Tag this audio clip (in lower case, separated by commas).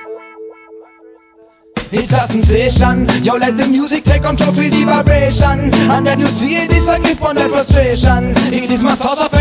soundtrack music, background music, music